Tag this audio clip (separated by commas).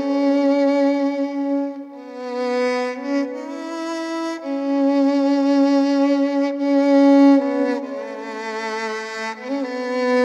Musical instrument, Music, fiddle